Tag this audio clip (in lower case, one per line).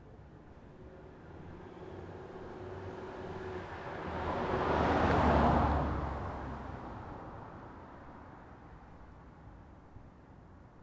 car
motor vehicle (road)
engine
car passing by
vehicle